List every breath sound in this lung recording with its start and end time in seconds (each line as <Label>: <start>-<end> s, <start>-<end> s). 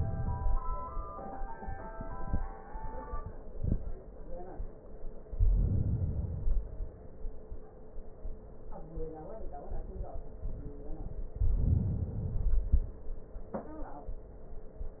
Inhalation: 5.27-6.35 s, 11.34-12.15 s
Exhalation: 6.35-7.68 s, 12.16-13.39 s